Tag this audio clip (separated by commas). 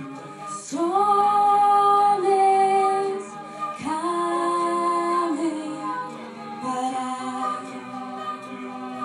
Music